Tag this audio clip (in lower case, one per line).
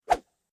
whoosh